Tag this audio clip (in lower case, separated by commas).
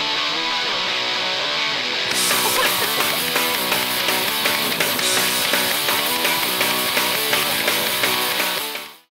fowl, cluck, chicken